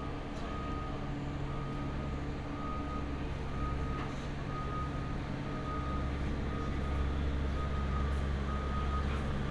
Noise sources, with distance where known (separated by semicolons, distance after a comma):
reverse beeper, far